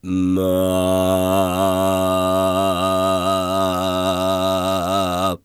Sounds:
Male singing, Singing, Human voice

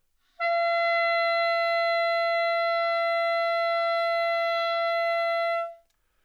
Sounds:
Music, Musical instrument, Wind instrument

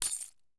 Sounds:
Domestic sounds, Keys jangling

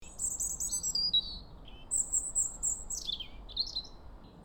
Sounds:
Animal, Wild animals, Bird

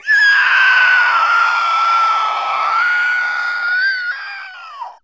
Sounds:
Human voice, Screaming

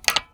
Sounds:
Mechanisms

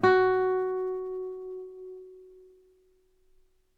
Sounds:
Musical instrument, Music, Guitar, Plucked string instrument

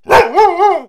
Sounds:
Animal, Domestic animals, Dog, Bark

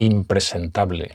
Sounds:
man speaking, Human voice, Speech

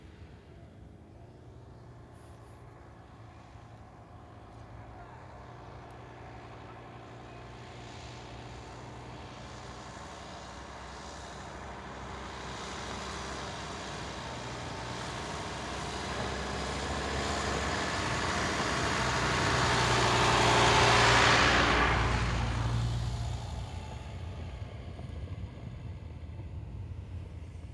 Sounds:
Motor vehicle (road), Vehicle, Truck

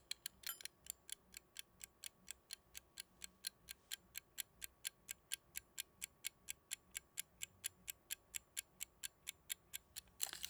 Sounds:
Mechanisms, Clock

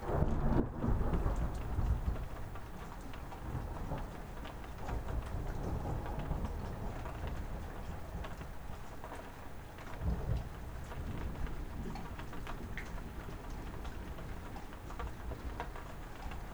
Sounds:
Rain, Thunderstorm, Water

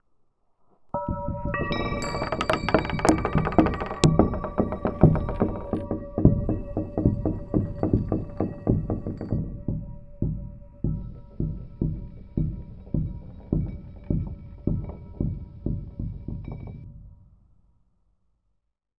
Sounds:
Bell, Wind chime, Chime

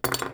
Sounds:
home sounds, silverware

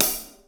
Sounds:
Musical instrument, Music, Cymbal, Hi-hat, Percussion

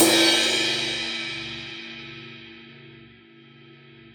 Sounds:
Cymbal, Percussion, Crash cymbal, Music, Musical instrument

